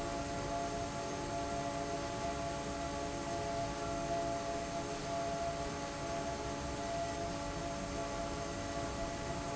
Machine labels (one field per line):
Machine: fan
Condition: normal